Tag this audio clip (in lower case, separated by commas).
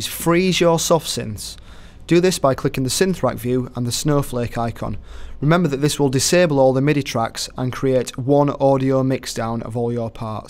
speech